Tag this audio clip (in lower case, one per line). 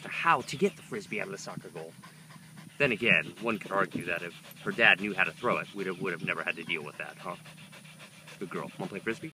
animal
dog